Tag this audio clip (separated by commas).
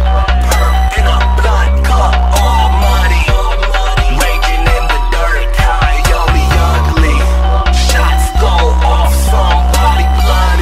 Music